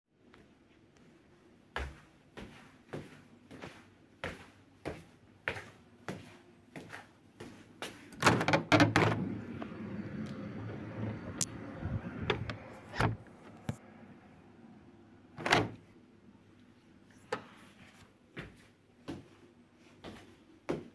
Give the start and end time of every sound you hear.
1.7s-8.1s: footsteps
8.2s-9.5s: window
15.3s-15.8s: window
18.3s-20.9s: footsteps

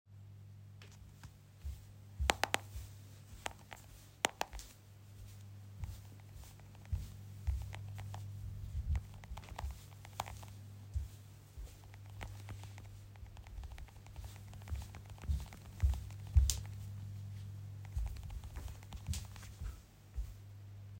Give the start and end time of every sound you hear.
1.1s-21.0s: footsteps

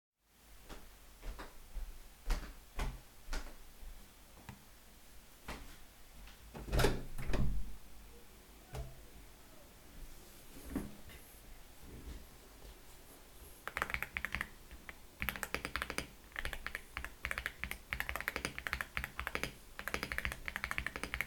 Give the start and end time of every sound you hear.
0.6s-5.8s: footsteps
6.6s-7.9s: window
13.6s-21.3s: keyboard typing

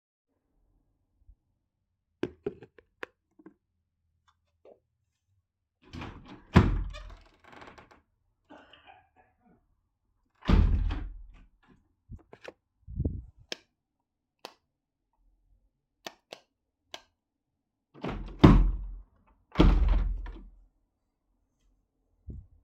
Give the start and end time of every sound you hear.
5.9s-8.2s: door
10.3s-11.5s: door
13.4s-13.7s: light switch
14.3s-14.6s: light switch
16.0s-16.5s: light switch
16.9s-17.1s: light switch
17.9s-20.6s: door

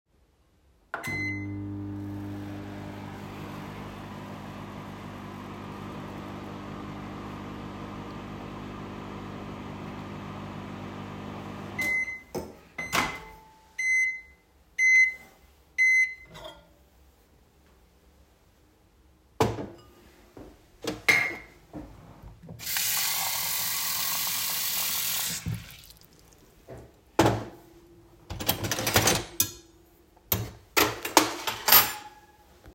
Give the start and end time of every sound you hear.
0.9s-16.8s: microwave
20.6s-21.6s: cutlery and dishes
22.7s-25.9s: running water
28.9s-32.7s: cutlery and dishes

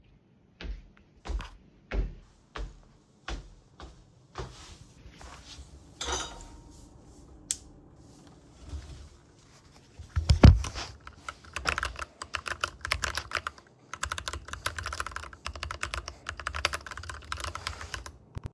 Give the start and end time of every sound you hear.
0.0s-5.7s: footsteps
5.5s-6.9s: cutlery and dishes
6.9s-8.1s: light switch
11.5s-18.5s: keyboard typing

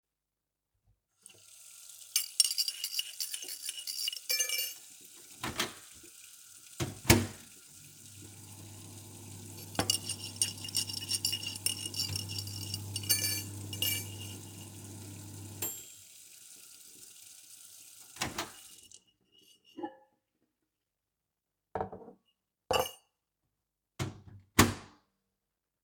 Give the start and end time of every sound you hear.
1.2s-19.2s: running water
2.3s-4.9s: cutlery and dishes
5.3s-16.1s: microwave
9.6s-14.4s: cutlery and dishes
18.1s-18.8s: microwave
19.7s-20.2s: cutlery and dishes
21.7s-23.1s: cutlery and dishes
23.9s-25.0s: microwave

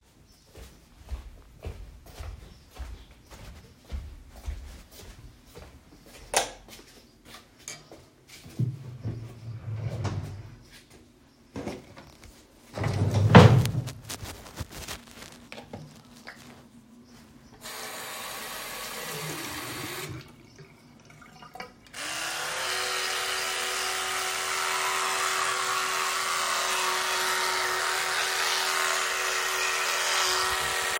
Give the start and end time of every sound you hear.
0.5s-9.1s: footsteps
6.3s-6.7s: light switch
6.7s-7.1s: light switch
8.6s-11.1s: wardrobe or drawer
10.8s-11.5s: footsteps
12.7s-14.2s: wardrobe or drawer
17.6s-22.1s: running water

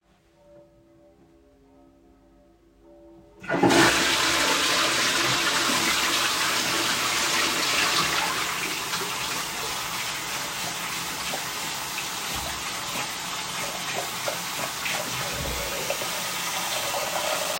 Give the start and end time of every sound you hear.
3.3s-10.4s: toilet flushing
5.6s-17.6s: running water

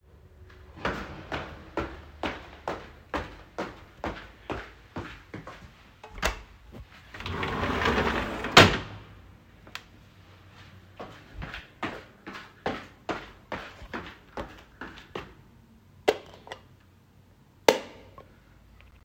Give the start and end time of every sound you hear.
0.8s-5.9s: footsteps
6.1s-9.0s: window
10.9s-15.4s: footsteps
16.0s-16.7s: light switch
17.5s-18.4s: light switch

